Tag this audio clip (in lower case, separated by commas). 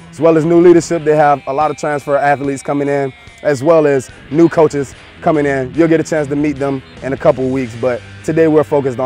music, speech